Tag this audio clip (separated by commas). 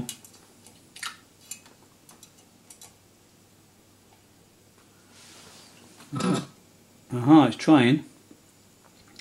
inside a small room, Speech